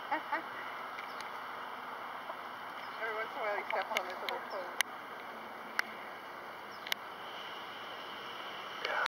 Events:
0.0s-9.0s: mechanisms
0.1s-0.2s: cluck
0.3s-0.4s: cluck
0.9s-1.2s: generic impact sounds
2.1s-2.3s: cluck
2.9s-5.0s: woman speaking
3.7s-4.3s: generic impact sounds
4.7s-4.8s: generic impact sounds
5.7s-5.9s: generic impact sounds
6.8s-7.0s: generic impact sounds
8.8s-9.0s: human sounds

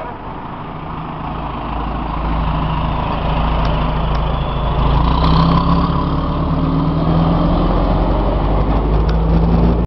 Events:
0.0s-9.8s: truck
0.0s-9.8s: wind
3.6s-3.7s: generic impact sounds
4.1s-4.2s: generic impact sounds
5.1s-9.8s: revving
9.0s-9.1s: generic impact sounds

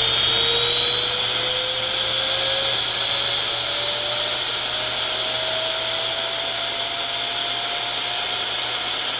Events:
0.0s-9.1s: drill

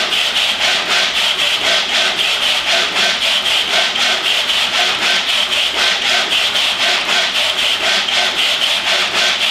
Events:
0.0s-9.5s: mechanisms

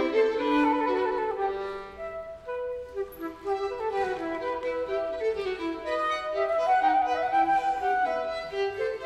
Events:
0.0s-9.0s: background noise
0.0s-9.0s: music

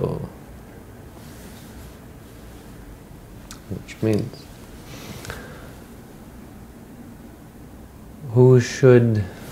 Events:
0.0s-9.5s: mechanisms
0.0s-0.5s: male speech
1.1s-2.0s: breathing
2.2s-2.9s: breathing
3.4s-4.3s: male speech
3.5s-3.6s: human sounds
3.9s-4.2s: human sounds
4.8s-5.7s: breathing
8.2s-9.4s: male speech

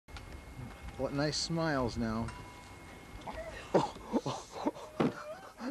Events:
0.0s-5.7s: mechanisms
0.0s-5.7s: wind
0.1s-0.2s: generic impact sounds
0.2s-0.3s: generic impact sounds
0.6s-0.7s: generic impact sounds
0.8s-0.9s: generic impact sounds
0.9s-2.3s: male speech
2.2s-2.7s: ding
3.1s-3.5s: dog
3.5s-3.7s: breathing
3.7s-5.4s: laughter
4.1s-4.6s: breathing
4.7s-5.5s: dog
4.7s-4.9s: breathing
4.9s-5.1s: thump
5.1s-5.7s: breathing

